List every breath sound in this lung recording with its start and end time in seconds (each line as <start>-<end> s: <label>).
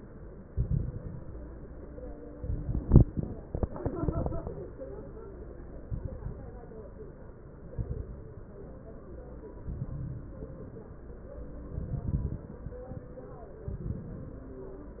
0.43-1.31 s: exhalation
0.43-1.31 s: crackles
2.41-3.29 s: exhalation
2.41-3.29 s: crackles
3.74-4.62 s: exhalation
3.74-4.62 s: crackles
5.87-6.44 s: exhalation
5.87-6.44 s: crackles
7.73-8.30 s: exhalation
7.73-8.30 s: crackles
9.63-10.47 s: exhalation
9.63-10.47 s: crackles
11.80-12.63 s: exhalation
11.80-12.63 s: crackles
13.68-14.52 s: exhalation
13.68-14.52 s: crackles